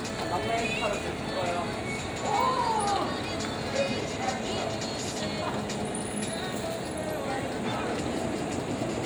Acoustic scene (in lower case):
street